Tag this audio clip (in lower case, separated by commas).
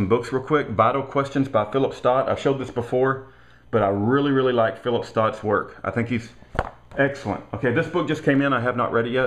speech